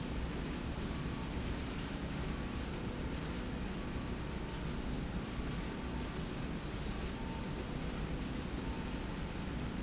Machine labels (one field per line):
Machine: slide rail